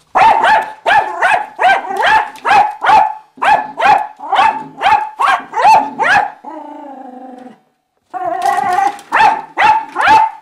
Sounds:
dog barking, domestic animals, bark, animal, dog

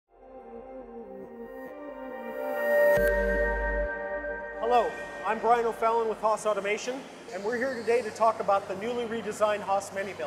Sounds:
music, speech

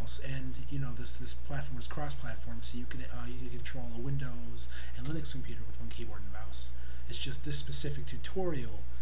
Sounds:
speech

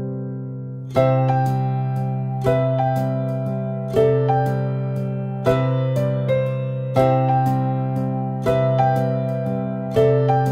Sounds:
music

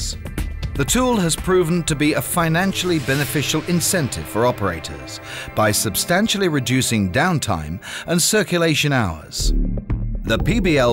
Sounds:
music, speech

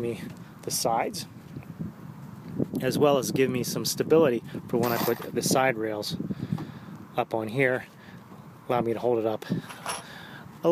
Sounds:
speech

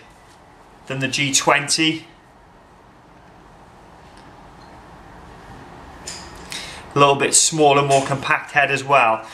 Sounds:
speech

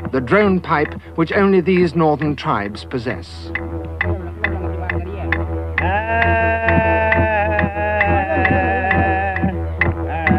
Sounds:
playing didgeridoo

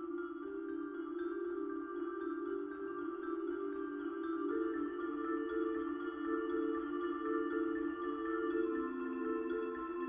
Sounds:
music, percussion

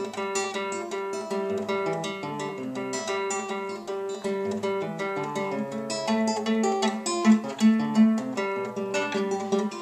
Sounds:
guitar, music, strum, musical instrument, plucked string instrument

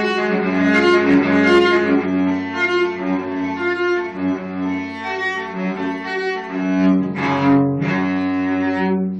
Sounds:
musical instrument, cello, music

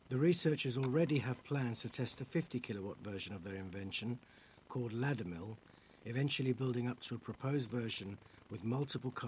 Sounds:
speech

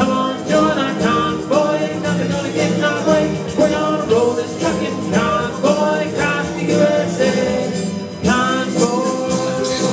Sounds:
singing, music

